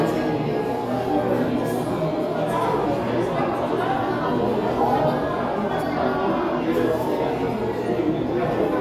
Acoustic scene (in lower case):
cafe